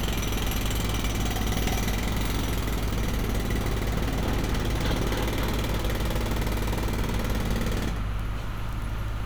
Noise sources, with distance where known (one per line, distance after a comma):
jackhammer, near